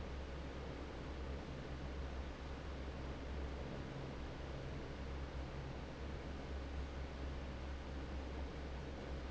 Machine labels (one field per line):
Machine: fan